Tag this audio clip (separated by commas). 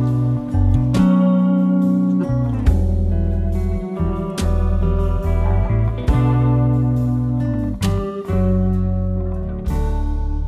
Music